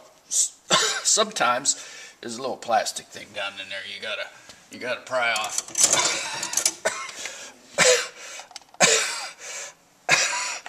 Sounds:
Cough, Speech

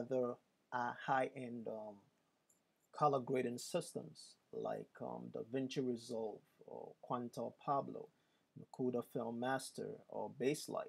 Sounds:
Speech

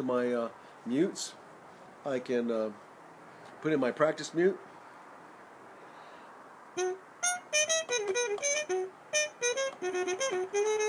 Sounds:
Speech, Musical instrument, Brass instrument, Trumpet, Music

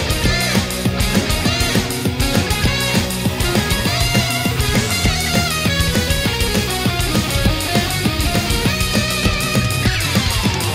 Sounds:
Theme music, Music

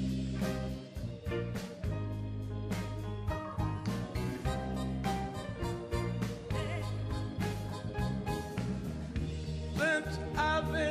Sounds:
Music

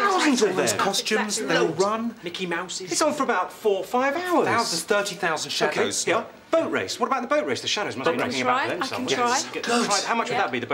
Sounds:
Speech

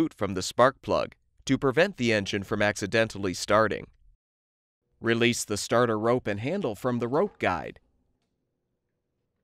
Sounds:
Speech

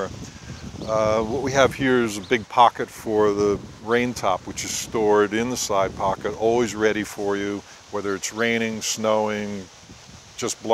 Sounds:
Speech

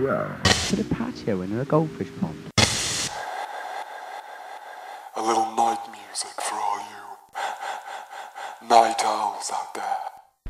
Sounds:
Sound effect

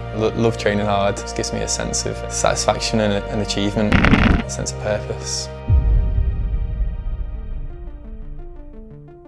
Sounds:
Music, Speech

